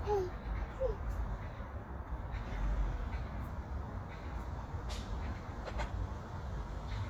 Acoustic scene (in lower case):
street